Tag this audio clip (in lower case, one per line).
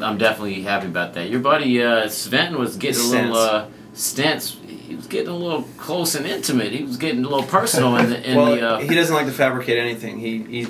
speech